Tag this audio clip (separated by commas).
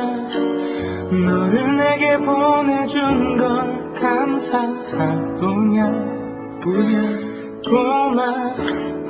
Music